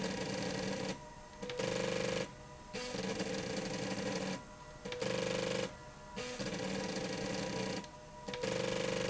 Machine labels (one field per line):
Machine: slide rail